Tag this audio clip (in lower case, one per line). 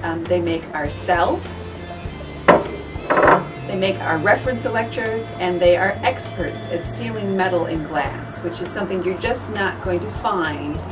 music
speech